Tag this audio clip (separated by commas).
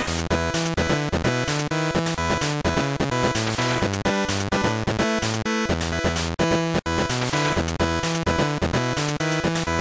Exciting music, Music